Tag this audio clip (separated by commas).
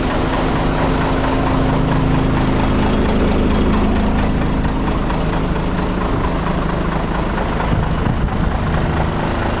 Vehicle, Truck